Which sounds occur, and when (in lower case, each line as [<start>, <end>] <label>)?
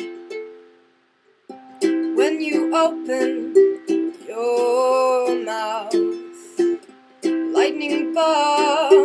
[0.00, 9.04] background noise
[0.01, 9.04] music
[2.04, 5.97] male singing
[6.30, 6.73] breathing
[7.47, 9.04] male singing